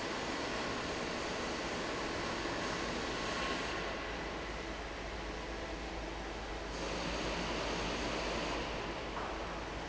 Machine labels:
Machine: fan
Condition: normal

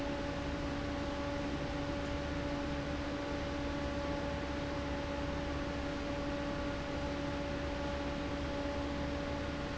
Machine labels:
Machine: fan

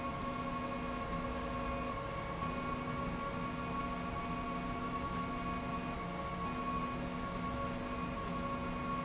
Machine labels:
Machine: slide rail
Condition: normal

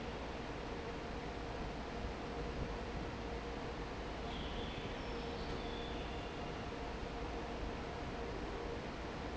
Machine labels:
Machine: fan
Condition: normal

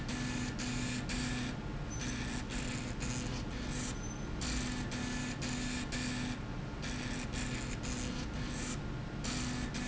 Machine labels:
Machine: slide rail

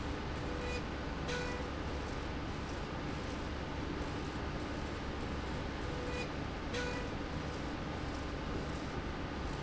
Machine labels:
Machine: slide rail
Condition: normal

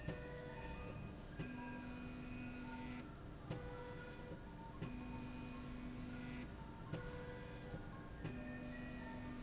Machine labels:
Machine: slide rail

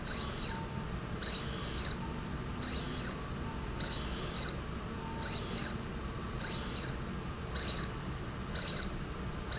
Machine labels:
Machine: slide rail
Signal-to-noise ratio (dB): -6 dB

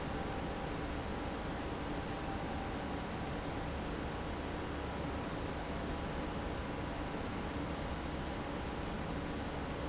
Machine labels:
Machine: pump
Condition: abnormal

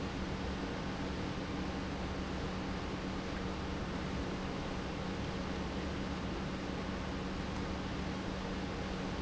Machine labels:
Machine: pump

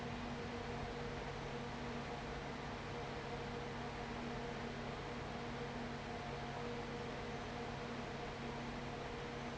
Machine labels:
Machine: fan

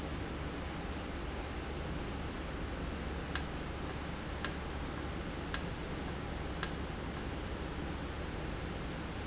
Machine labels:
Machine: valve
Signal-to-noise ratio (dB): -6 dB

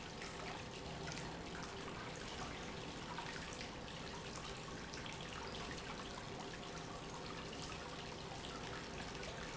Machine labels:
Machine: pump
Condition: normal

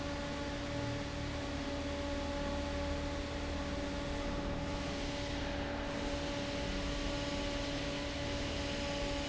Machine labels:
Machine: fan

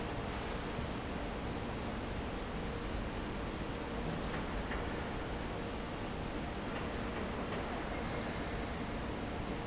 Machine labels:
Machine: fan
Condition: normal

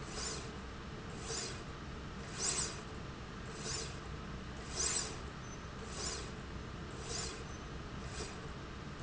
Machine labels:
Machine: slide rail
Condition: normal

